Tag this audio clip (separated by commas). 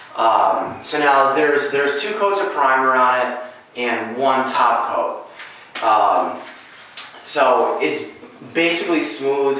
Speech